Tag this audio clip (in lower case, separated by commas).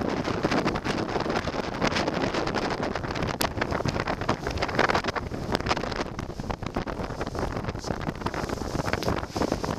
wind noise, wind noise (microphone)